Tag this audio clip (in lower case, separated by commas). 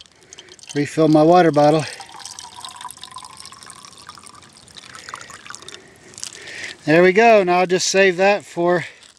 water